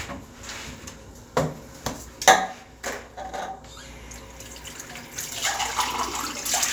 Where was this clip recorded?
in a restroom